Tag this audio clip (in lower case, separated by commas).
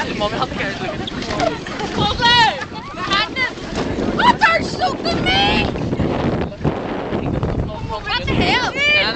gurgling, speech